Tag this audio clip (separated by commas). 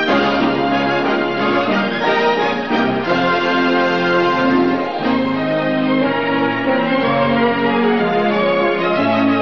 Music